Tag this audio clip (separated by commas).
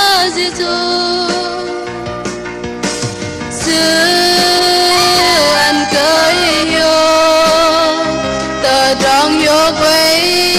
Singing, Country, Music